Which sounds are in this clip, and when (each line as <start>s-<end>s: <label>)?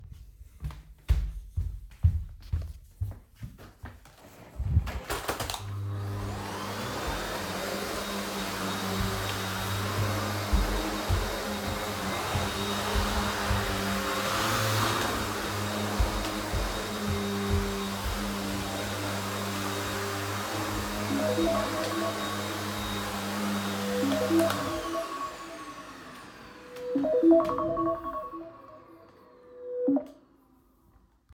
0.0s-4.4s: footsteps
5.4s-31.3s: vacuum cleaner
10.4s-13.8s: footsteps
15.9s-18.3s: footsteps
21.1s-30.2s: phone ringing